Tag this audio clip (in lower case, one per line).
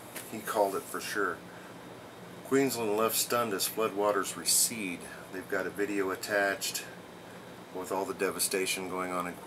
speech